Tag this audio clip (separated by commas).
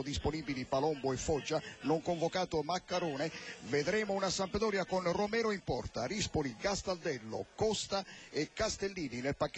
Speech